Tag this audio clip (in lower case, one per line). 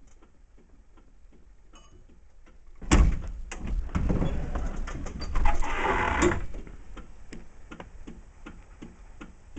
vehicle
outside, rural or natural
bus